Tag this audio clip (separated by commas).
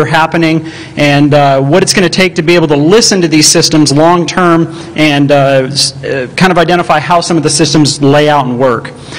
Speech